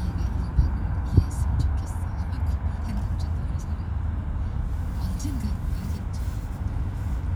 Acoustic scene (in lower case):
car